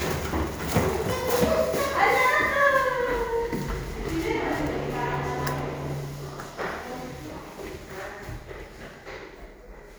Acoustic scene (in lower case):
elevator